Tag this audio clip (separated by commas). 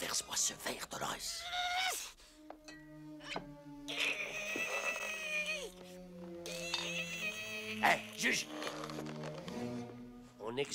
people battle cry